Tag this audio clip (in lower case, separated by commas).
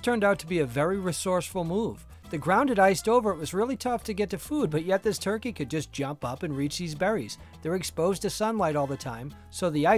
speech, music